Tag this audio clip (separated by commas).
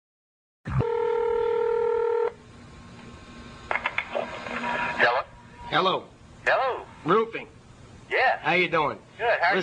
DTMF, Speech